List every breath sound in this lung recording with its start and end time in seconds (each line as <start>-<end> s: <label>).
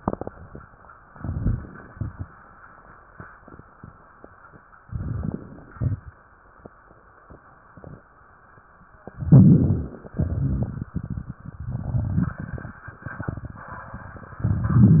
1.13-1.86 s: crackles
1.14-1.93 s: inhalation
1.90-2.44 s: exhalation
1.95-2.43 s: crackles
4.86-5.74 s: inhalation
4.87-5.75 s: crackles
5.75-6.29 s: exhalation
5.78-6.27 s: crackles
9.06-10.12 s: inhalation
9.18-10.06 s: crackles
10.16-14.42 s: exhalation
10.16-14.42 s: crackles